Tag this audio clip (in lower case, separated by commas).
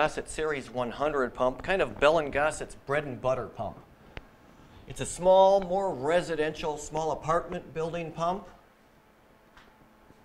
speech